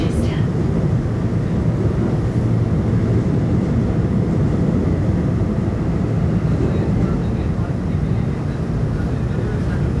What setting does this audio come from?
subway train